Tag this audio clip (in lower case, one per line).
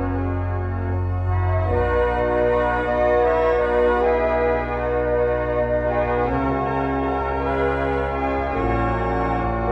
music
piano
musical instrument
classical music
keyboard (musical)